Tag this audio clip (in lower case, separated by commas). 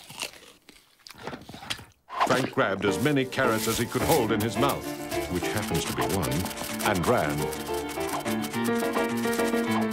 speech, music